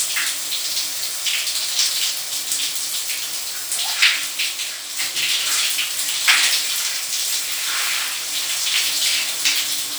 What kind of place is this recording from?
restroom